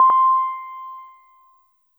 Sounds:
piano, keyboard (musical), musical instrument, music

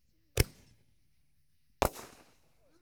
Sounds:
fireworks, explosion

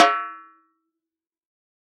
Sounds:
percussion, drum, musical instrument, music, snare drum

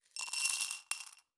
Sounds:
glass, coin (dropping), domestic sounds

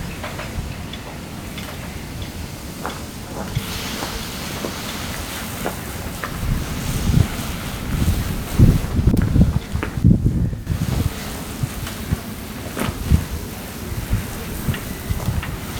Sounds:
water, wind, ocean

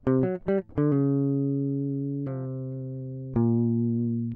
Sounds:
music, plucked string instrument, musical instrument, guitar

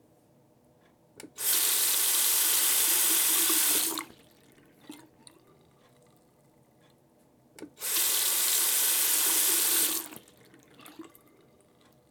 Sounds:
faucet, domestic sounds

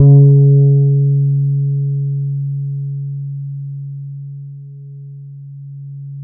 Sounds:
music, musical instrument, plucked string instrument, guitar, bass guitar

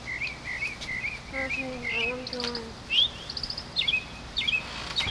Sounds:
bird song, animal, wild animals, bird

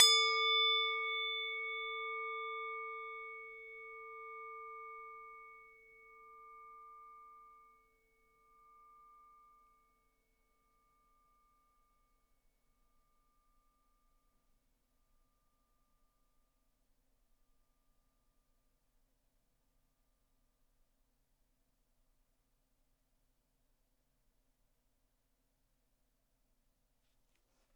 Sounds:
music, musical instrument

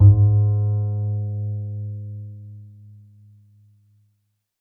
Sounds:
music, bowed string instrument, musical instrument

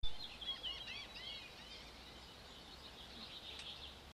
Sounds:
animal, gull, bird, wild animals

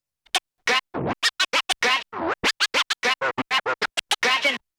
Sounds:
scratching (performance technique), musical instrument, music

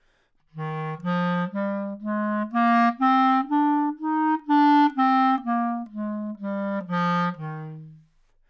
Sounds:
musical instrument, music, woodwind instrument

